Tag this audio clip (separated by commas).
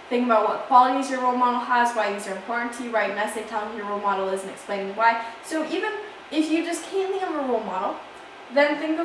Speech